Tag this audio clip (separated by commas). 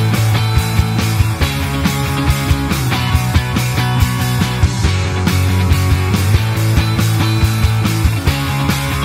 Music